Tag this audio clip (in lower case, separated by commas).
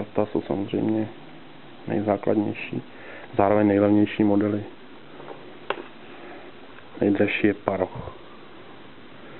speech, inside a small room